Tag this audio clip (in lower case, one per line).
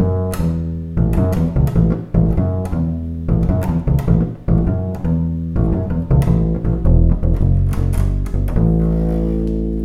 playing double bass